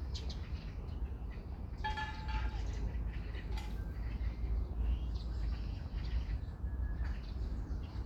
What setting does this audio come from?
park